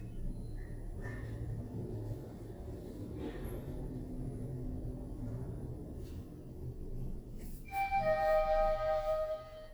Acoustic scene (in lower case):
elevator